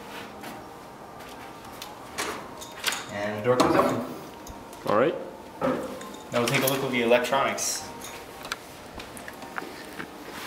Door closing while man is speaking